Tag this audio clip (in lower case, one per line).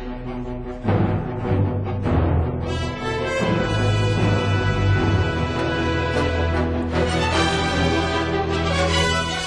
theme music